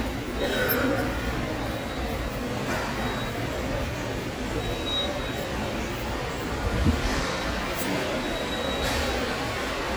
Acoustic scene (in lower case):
subway station